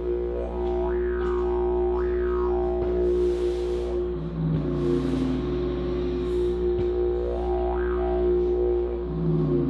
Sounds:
playing didgeridoo

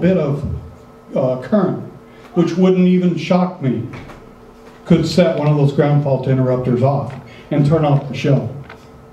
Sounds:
Speech

